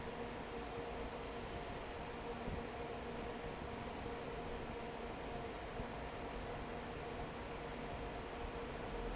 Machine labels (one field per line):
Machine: fan